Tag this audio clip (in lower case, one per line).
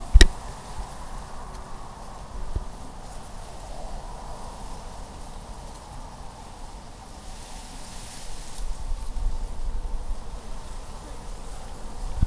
wind